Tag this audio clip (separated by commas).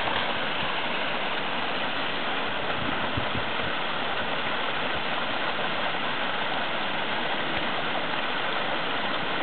stream burbling, Stream